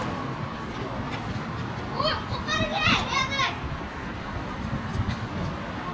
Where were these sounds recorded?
in a residential area